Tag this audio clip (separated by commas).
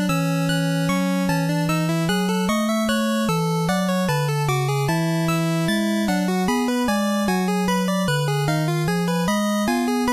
Music